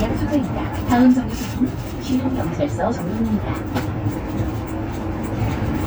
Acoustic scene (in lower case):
bus